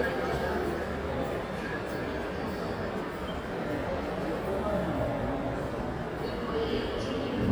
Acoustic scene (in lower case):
subway station